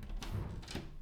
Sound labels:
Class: door